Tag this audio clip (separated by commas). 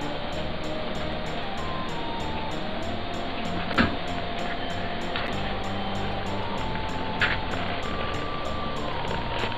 Music